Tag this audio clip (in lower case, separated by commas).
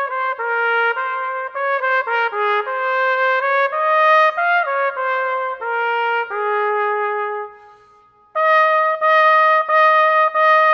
trumpet, brass instrument, playing trumpet